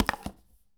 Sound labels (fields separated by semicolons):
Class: object falling; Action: being thrown; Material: plastic